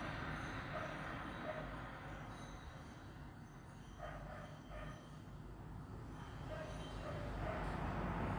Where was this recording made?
on a street